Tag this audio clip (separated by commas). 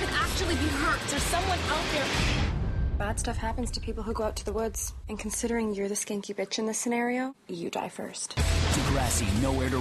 Music, Speech